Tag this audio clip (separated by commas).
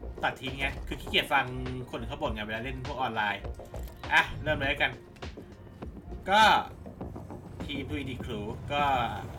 Music, Speech